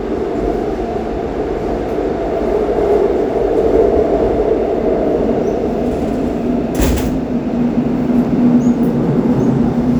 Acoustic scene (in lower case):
subway train